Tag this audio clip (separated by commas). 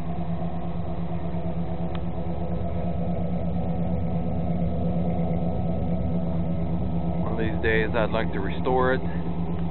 Speech, Vehicle, Truck